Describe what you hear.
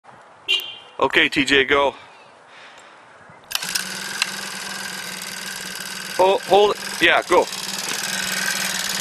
A horn honks, a man speaks, ans a motorbike starts up